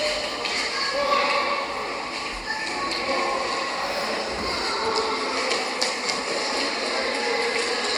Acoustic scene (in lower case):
subway station